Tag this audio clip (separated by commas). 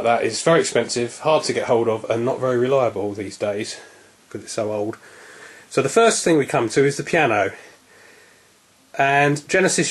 Speech